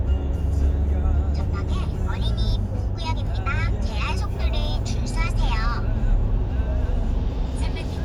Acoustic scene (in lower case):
car